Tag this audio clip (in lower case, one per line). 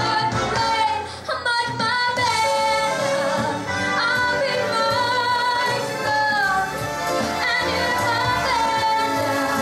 female singing
music